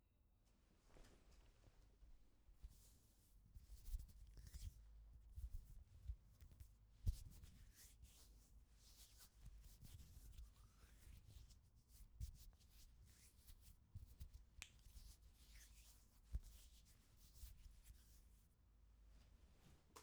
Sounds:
hands

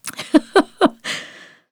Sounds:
giggle, laughter, human voice

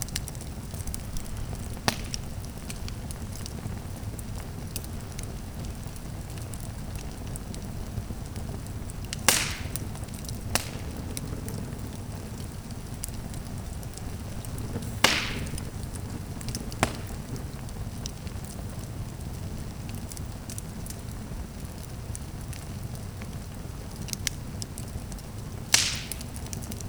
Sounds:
fire

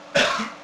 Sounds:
respiratory sounds, cough

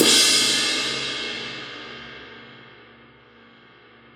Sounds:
music, crash cymbal, musical instrument, percussion, cymbal

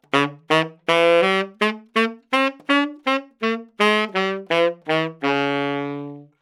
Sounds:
music, musical instrument, woodwind instrument

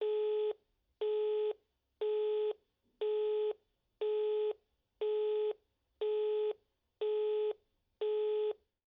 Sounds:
telephone, alarm

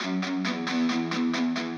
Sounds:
musical instrument, plucked string instrument, music, guitar, electric guitar

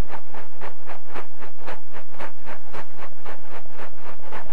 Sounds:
train, vehicle, rail transport

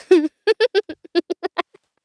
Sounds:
human voice, laughter

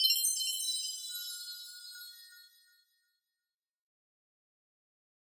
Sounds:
chime, bell

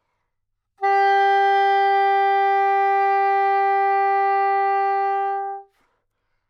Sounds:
woodwind instrument, music, musical instrument

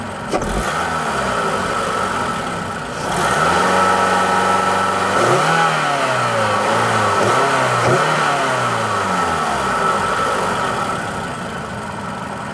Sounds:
vehicle, motor vehicle (road)

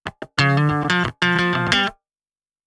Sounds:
plucked string instrument, music, electric guitar, guitar, musical instrument

